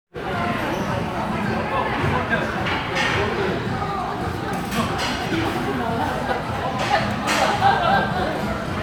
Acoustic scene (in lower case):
restaurant